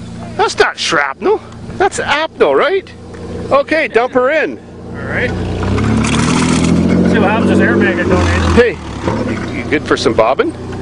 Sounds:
Speech

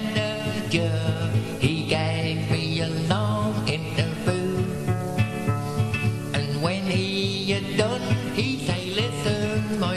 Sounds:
Music, Male singing

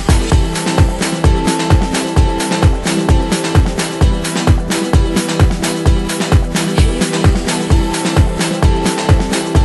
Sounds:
Music

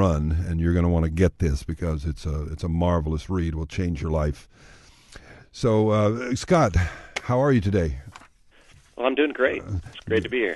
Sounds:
Speech

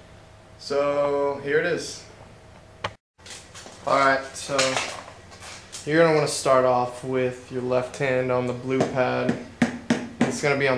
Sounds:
inside a small room, Speech, Drum

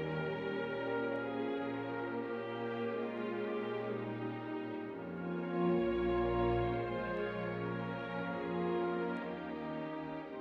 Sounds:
Music

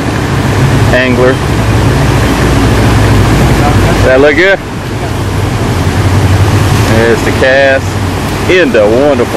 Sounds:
outside, rural or natural, Speech

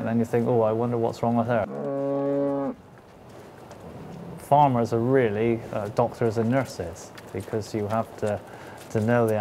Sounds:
Speech

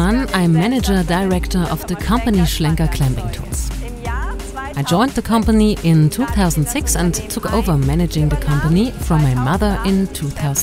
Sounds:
Speech, Music

